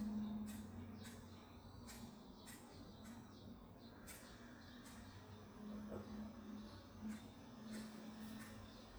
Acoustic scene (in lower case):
park